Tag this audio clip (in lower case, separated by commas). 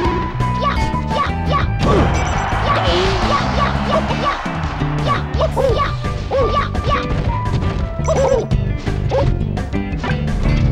music